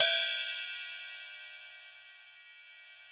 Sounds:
Music, Cymbal, Musical instrument, Hi-hat, Percussion

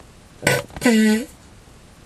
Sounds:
Fart

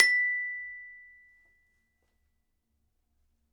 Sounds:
Percussion, Musical instrument, Music, Glockenspiel, Mallet percussion

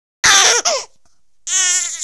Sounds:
Crying, Human voice

